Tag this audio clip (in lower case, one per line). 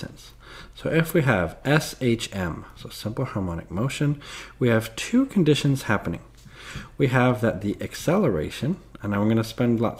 speech